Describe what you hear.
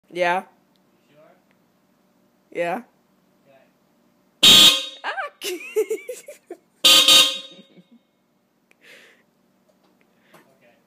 A family is having fun honking a vehicle horn